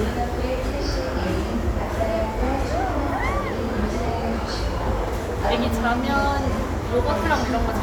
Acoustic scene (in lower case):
crowded indoor space